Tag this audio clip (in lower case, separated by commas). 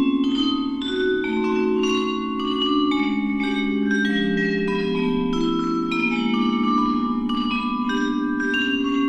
vibraphone, xylophone, music